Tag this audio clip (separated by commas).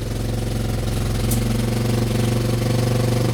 Engine